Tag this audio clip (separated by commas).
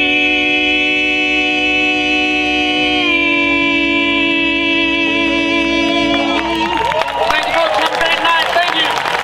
Speech, Singing